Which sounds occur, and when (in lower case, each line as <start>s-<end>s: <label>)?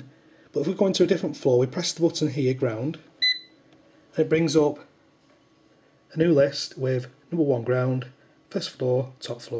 0.0s-9.5s: mechanisms
0.0s-0.5s: breathing
0.5s-3.0s: male speech
1.3s-1.4s: generic impact sounds
3.2s-3.6s: beep
3.7s-3.7s: tick
4.1s-4.8s: male speech
5.2s-5.4s: generic impact sounds
6.1s-7.1s: male speech
7.3s-8.1s: male speech
8.5s-9.5s: male speech